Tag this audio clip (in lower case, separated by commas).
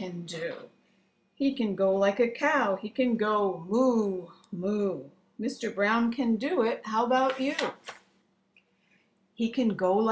speech